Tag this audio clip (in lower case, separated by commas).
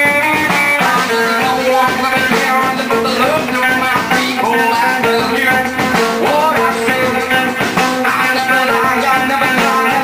music, singing